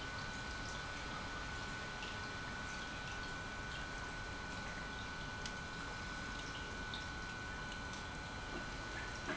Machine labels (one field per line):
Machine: pump